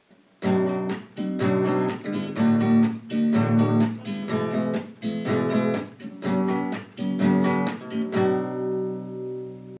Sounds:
music

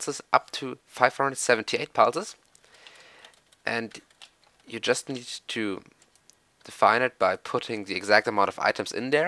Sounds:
speech

